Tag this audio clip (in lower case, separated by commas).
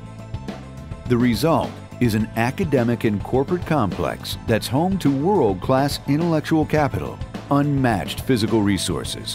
speech, music